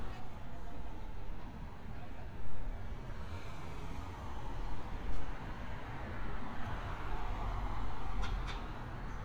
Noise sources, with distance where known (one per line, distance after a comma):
background noise